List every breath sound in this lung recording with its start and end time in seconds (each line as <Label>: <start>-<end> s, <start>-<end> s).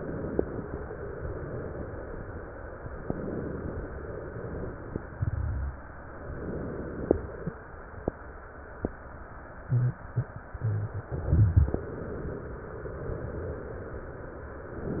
Inhalation: 3.04-4.62 s, 6.23-7.68 s, 14.70-15.00 s
Exhalation: 4.62-6.17 s